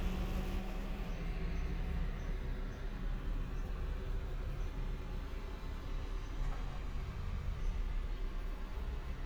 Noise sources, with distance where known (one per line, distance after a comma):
medium-sounding engine, far